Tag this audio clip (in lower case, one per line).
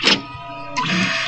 printer
mechanisms